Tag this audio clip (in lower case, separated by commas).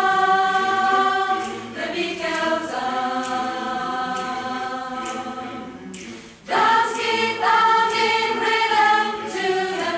choir